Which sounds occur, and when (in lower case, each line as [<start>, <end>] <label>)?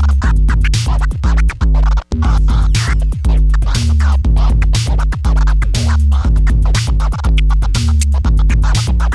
[0.00, 9.14] music